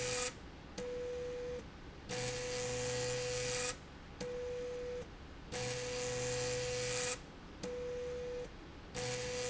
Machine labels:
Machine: slide rail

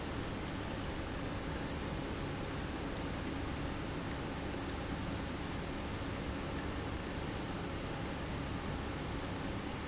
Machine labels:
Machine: pump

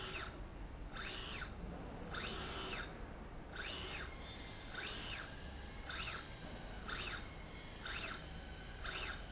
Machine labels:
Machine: slide rail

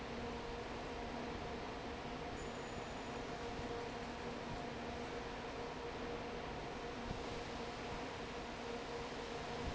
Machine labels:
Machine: fan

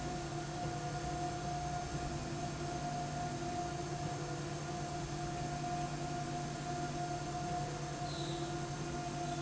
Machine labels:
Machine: slide rail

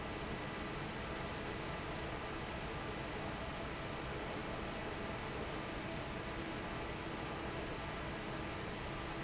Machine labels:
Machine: fan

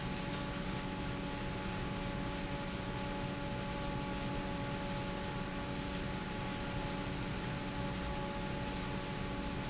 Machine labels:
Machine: fan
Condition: normal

